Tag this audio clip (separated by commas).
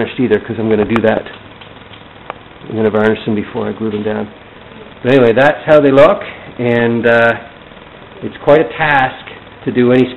Speech